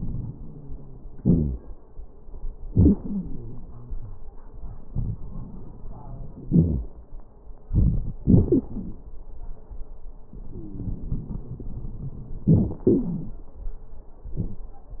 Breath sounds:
0.00-1.15 s: wheeze
1.11-1.59 s: exhalation
1.19-1.58 s: wheeze
2.63-4.22 s: inhalation
2.63-4.22 s: wheeze
6.42-6.85 s: exhalation
6.42-6.85 s: wheeze
7.69-8.20 s: inhalation
7.69-8.20 s: crackles
8.23-9.03 s: exhalation
8.23-9.03 s: crackles
10.32-11.49 s: wheeze
10.38-12.47 s: inhalation
12.46-13.44 s: exhalation
12.46-13.44 s: crackles

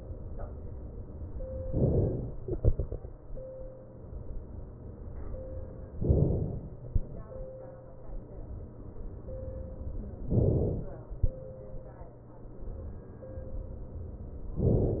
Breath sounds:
1.66-2.45 s: inhalation
2.45-3.50 s: exhalation
6.04-6.93 s: inhalation
10.29-11.18 s: inhalation

